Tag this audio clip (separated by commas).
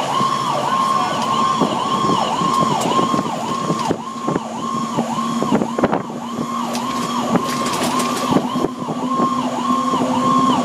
Fire engine, Vehicle, Car